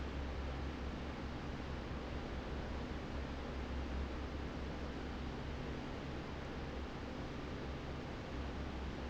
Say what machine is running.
fan